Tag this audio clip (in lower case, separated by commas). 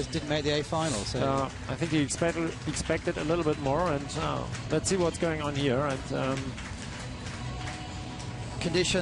speech